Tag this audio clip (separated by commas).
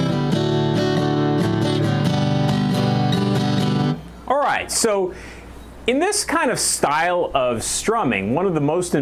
Strum, Guitar, Plucked string instrument, Speech, Acoustic guitar, Music, Musical instrument